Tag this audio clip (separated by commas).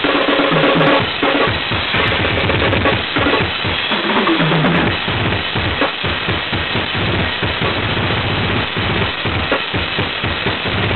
Music